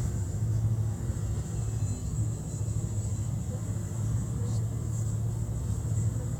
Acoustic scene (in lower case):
bus